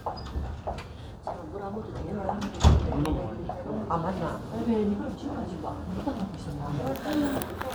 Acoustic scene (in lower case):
crowded indoor space